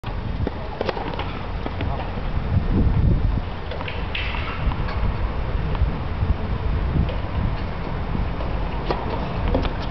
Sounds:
playing tennis

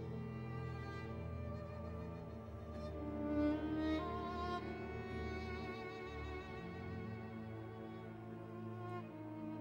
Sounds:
Music, Violin, Musical instrument

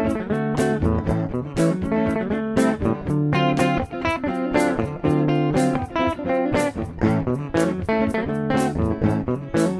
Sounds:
Music, Bass guitar

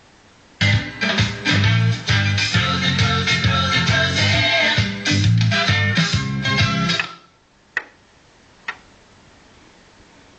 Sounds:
Music

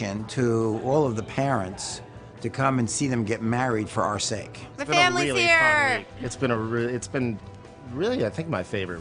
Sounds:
Music, Speech

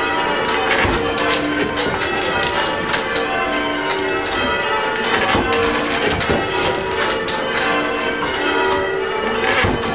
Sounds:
church bell ringing

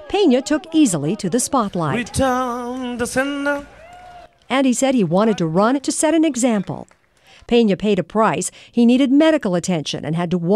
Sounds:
inside a large room or hall, Speech, outside, urban or man-made

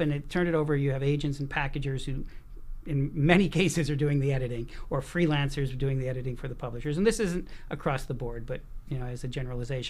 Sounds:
Speech

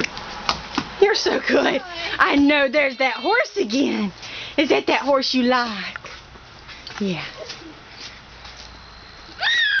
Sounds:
Speech

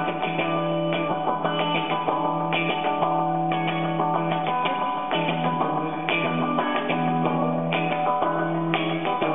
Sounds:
Guitar, Music, Effects unit

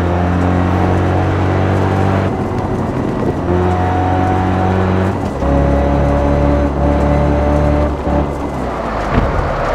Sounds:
outside, rural or natural, Car, Vehicle

